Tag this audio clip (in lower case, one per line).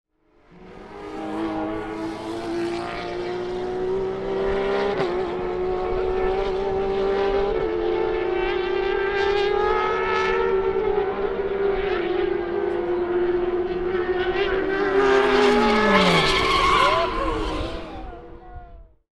motor vehicle (road)
vehicle
car
auto racing
vroom
engine